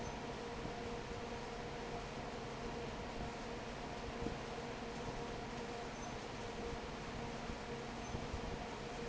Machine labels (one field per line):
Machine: fan